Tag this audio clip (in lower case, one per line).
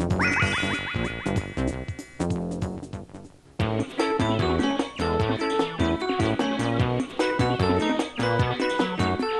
music